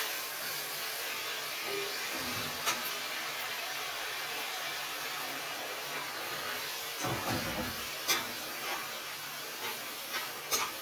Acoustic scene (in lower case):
kitchen